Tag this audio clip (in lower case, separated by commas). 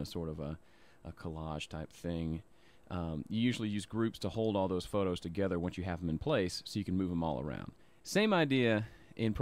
speech